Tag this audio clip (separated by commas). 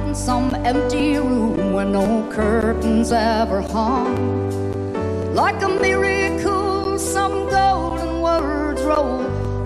Singing, Christmas music, Music